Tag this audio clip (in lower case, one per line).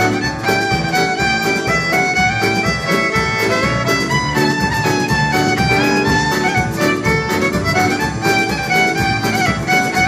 music
musical instrument
violin